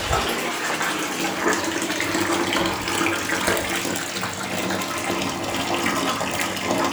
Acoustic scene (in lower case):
restroom